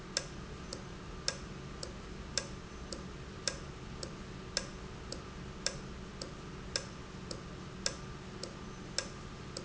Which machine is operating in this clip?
valve